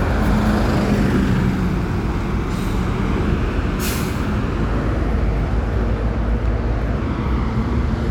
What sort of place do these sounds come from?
street